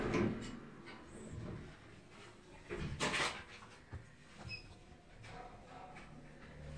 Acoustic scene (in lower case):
elevator